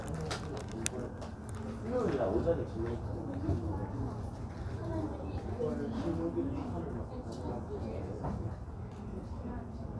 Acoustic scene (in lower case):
crowded indoor space